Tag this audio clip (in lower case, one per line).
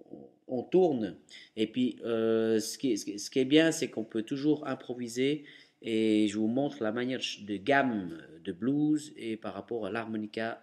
speech